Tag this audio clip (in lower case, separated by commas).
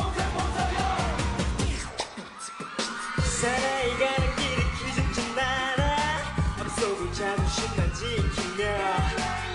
music